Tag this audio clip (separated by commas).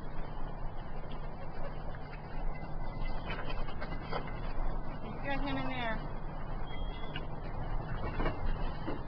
Speech